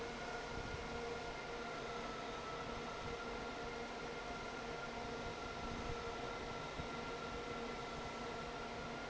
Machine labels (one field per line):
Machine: fan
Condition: normal